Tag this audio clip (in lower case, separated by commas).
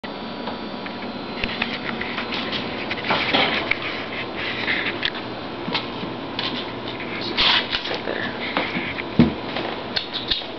speech